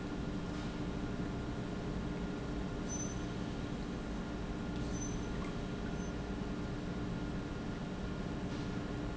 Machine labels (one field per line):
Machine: pump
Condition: normal